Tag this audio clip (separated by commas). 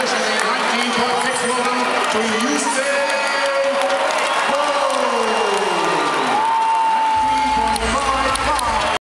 outside, urban or man-made, Speech